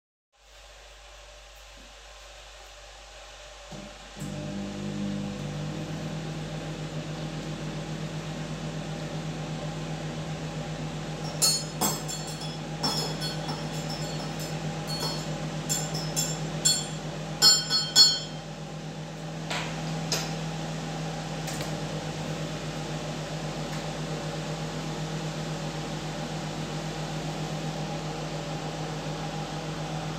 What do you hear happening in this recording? Audio begins with the kettle (coffee machine) already on, I then turn on the microwave and walk over to my mug where I stir my drink with a spoon.